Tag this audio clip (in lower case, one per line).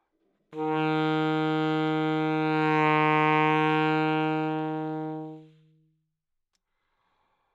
wind instrument
musical instrument
music